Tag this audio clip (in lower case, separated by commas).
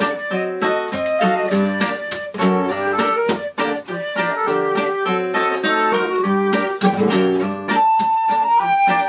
mandolin, music